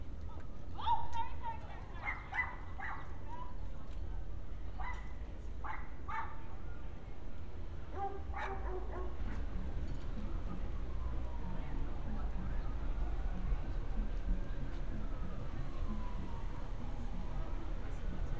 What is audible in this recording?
background noise